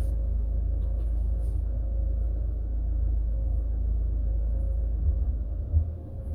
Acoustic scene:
car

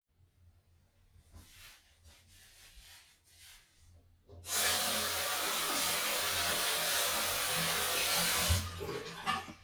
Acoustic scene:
restroom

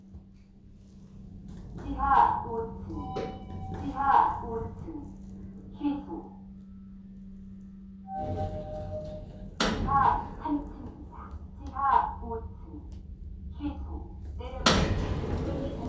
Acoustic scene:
elevator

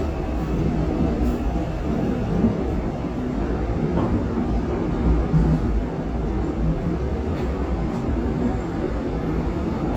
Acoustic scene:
subway train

